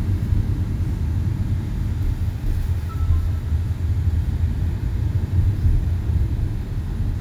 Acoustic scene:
car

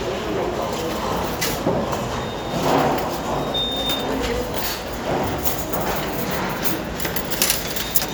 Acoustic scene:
restaurant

